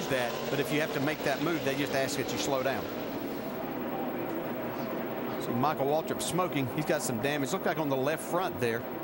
Male speaking while motor vehicles passing by